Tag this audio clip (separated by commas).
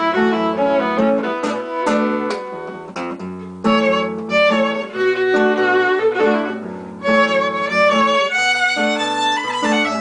Musical instrument, Music, fiddle